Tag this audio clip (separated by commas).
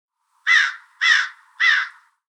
Bird, Wild animals, Animal, Crow, Bird vocalization